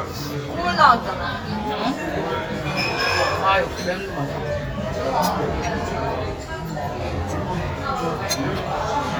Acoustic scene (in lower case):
restaurant